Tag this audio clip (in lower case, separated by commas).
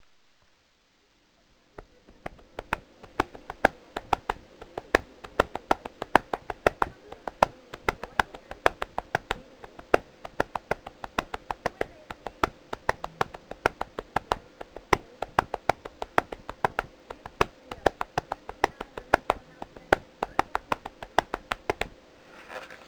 tap